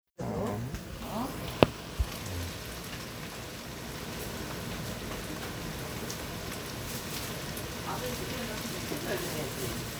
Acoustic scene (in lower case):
kitchen